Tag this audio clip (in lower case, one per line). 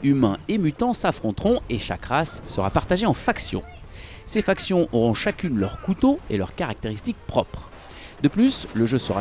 speech